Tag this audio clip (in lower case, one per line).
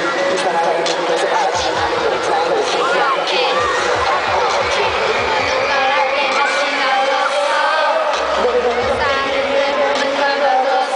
music